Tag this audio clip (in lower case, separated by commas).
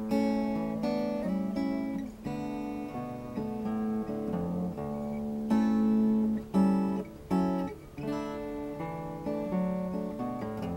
acoustic guitar, music, plucked string instrument, strum, guitar, musical instrument